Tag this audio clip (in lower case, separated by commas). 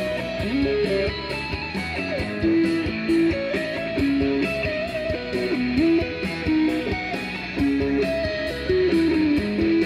bowed string instrument, guitar, electric guitar, playing electric guitar, music, plucked string instrument, musical instrument